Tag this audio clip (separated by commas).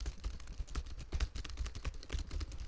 home sounds, Typing